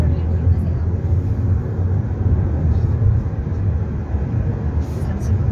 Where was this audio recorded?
in a car